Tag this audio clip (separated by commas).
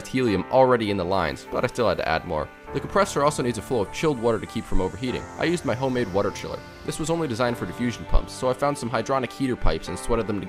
Music, Speech